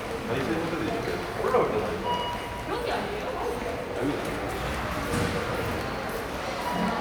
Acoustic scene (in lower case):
subway station